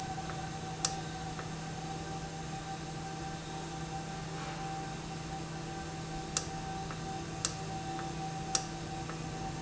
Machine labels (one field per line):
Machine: valve